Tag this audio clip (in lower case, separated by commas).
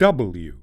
speech, male speech, human voice